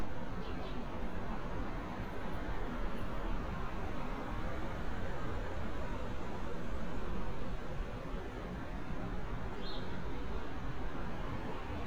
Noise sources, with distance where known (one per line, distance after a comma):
engine of unclear size